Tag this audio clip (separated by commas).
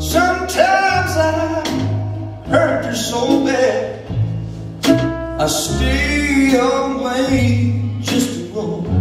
Wedding music, Music